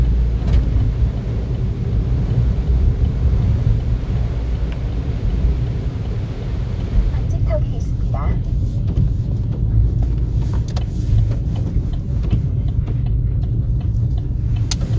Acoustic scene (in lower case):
car